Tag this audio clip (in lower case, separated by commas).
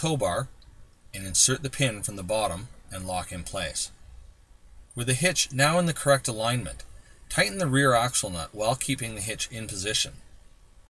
speech